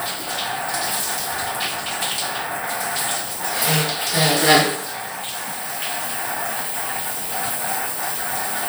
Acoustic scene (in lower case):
restroom